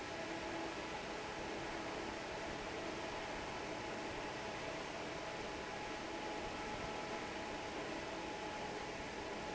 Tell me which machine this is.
fan